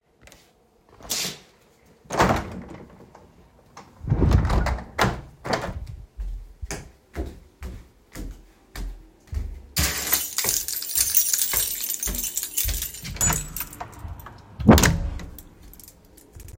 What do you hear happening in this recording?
I opened and closed the window then walked to the front door while jingling my keychain. I then opened and closed the door.